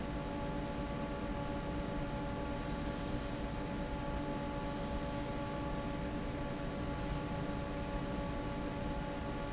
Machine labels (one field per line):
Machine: fan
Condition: normal